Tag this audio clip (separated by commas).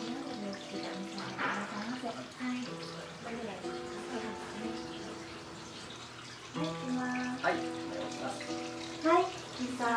inside a large room or hall, Music, Speech